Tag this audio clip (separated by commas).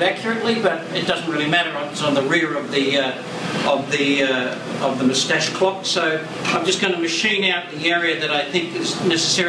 Speech